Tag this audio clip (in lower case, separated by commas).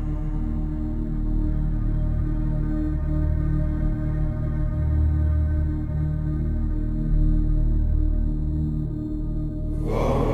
mantra, music